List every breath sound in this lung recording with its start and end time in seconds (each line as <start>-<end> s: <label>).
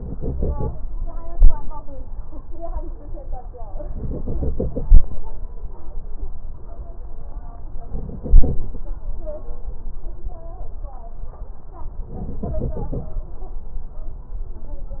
0.00-0.74 s: inhalation
3.98-5.20 s: inhalation
7.91-8.85 s: inhalation
12.13-13.06 s: inhalation